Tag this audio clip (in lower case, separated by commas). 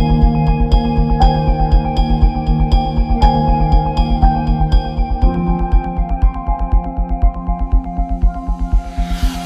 theme music, music